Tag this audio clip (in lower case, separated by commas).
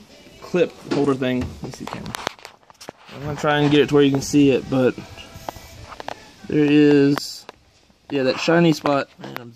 speech, music